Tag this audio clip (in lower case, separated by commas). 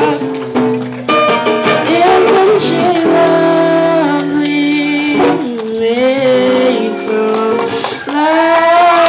singing, music, inside a large room or hall